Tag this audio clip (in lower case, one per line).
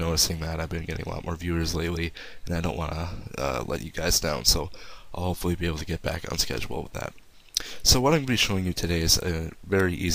speech